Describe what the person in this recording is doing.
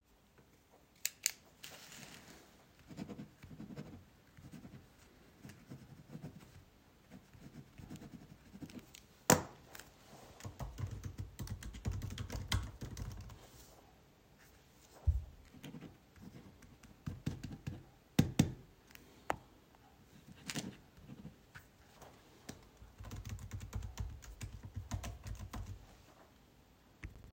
I wrote onto my piece of paper. After that I typed it in my computer. Then again.